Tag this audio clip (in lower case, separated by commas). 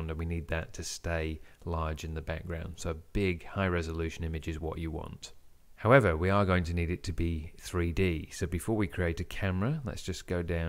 speech